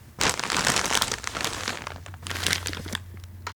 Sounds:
crinkling

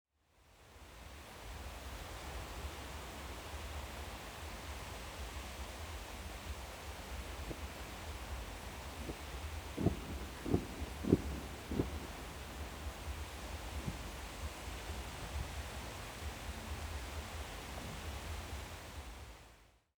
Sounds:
ocean
water
fireworks
explosion

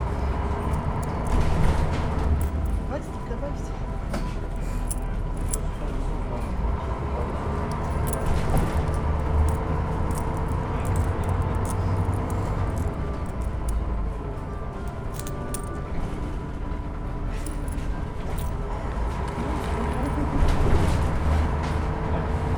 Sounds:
motor vehicle (road)
bus
vehicle

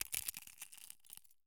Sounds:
crushing

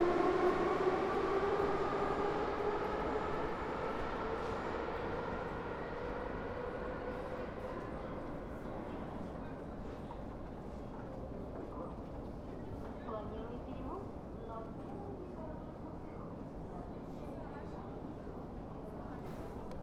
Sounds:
vehicle
rail transport
metro

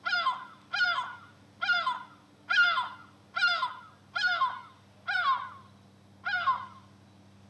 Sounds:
bird
animal
bird song
wild animals

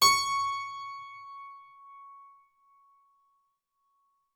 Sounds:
musical instrument
keyboard (musical)
music

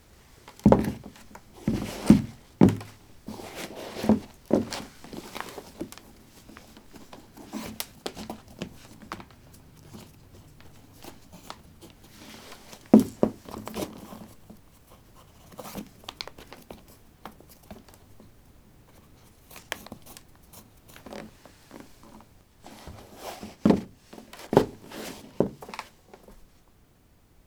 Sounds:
walk

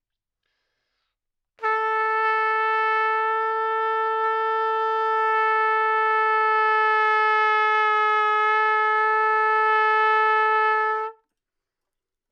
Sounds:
musical instrument
music
brass instrument
trumpet

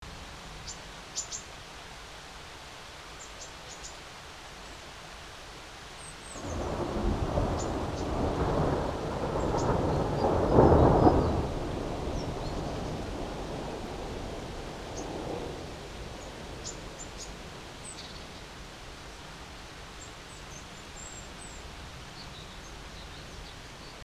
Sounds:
water
thunder
rain
thunderstorm

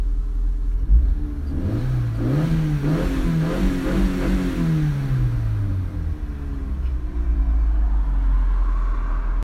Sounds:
car
idling
vehicle
vroom
engine
motor vehicle (road)

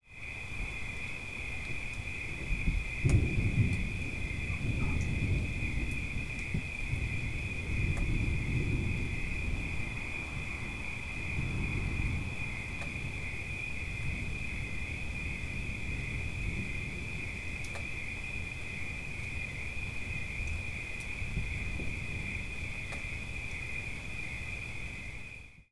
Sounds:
thunder
thunderstorm

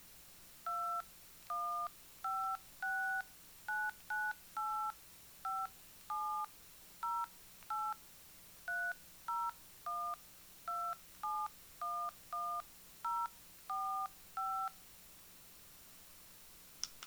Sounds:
alarm
telephone

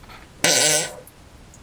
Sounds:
fart

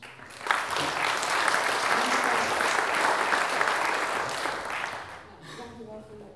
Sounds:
human group actions
applause

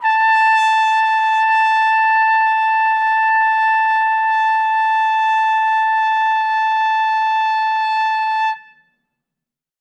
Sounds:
trumpet
brass instrument
music
musical instrument

